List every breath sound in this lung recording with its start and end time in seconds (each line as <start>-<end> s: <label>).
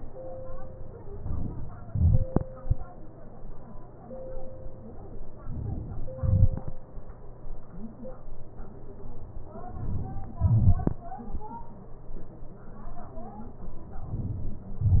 9.68-10.36 s: inhalation
10.36-11.54 s: exhalation